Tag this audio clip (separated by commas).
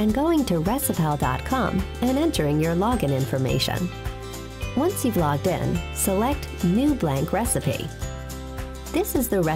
Music, Speech